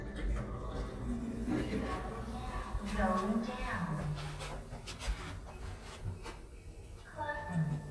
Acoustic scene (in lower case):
elevator